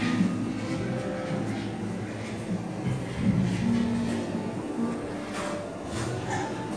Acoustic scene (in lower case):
cafe